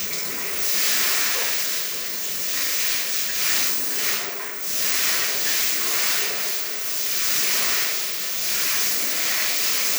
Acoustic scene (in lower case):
restroom